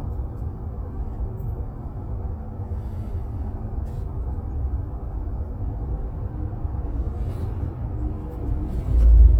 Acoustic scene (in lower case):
bus